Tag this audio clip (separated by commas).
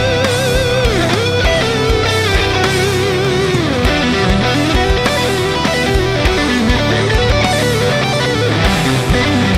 Strum, Guitar, Musical instrument, Music, Plucked string instrument